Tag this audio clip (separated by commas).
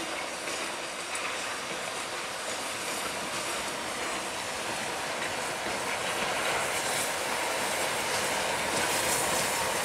Clickety-clack, Railroad car, Train, Rail transport